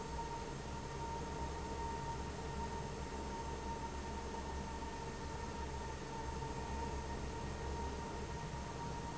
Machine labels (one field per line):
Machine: fan